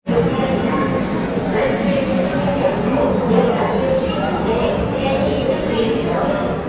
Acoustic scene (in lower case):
subway station